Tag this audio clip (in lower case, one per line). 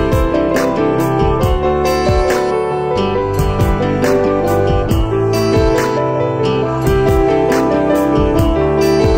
musical instrument
music
fiddle